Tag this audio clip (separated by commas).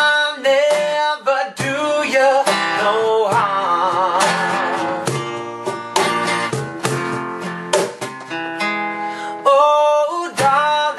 Music